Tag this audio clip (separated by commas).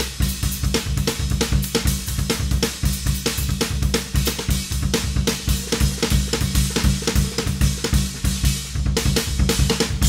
playing cymbal